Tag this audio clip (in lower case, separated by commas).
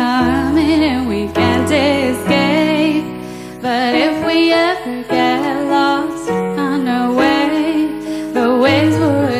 music